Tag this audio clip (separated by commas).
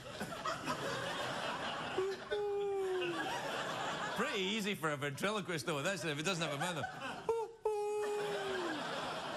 Speech